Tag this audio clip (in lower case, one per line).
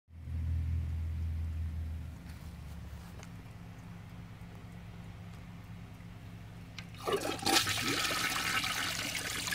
toilet flush